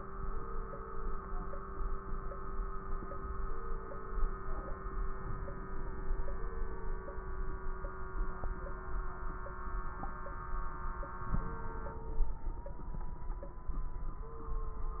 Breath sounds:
Inhalation: 5.09-6.27 s, 11.24-12.25 s

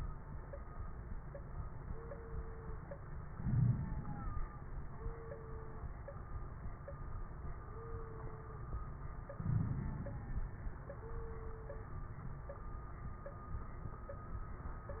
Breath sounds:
Inhalation: 3.35-4.45 s, 9.35-10.45 s
Crackles: 3.35-4.45 s, 9.35-10.45 s

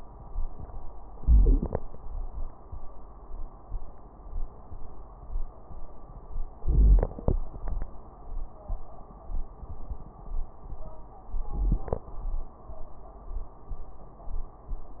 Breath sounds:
Inhalation: 1.11-1.81 s, 6.65-7.36 s, 11.46-12.17 s
Wheeze: 1.09-1.80 s, 6.63-7.34 s
Crackles: 1.09-1.80 s, 6.63-7.34 s, 11.46-12.17 s

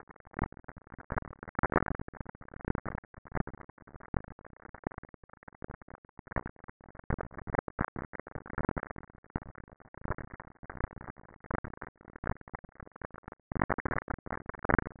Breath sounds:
No breath sounds were labelled in this clip.

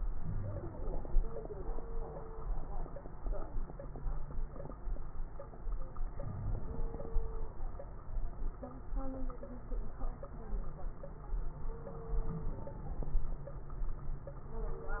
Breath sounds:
Inhalation: 6.22-7.19 s
Wheeze: 0.13-0.67 s, 6.22-6.64 s

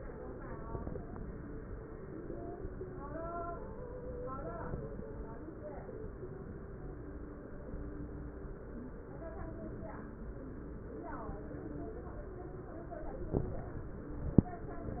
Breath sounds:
No breath sounds were labelled in this clip.

